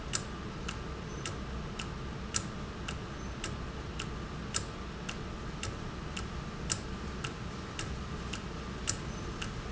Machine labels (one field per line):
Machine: valve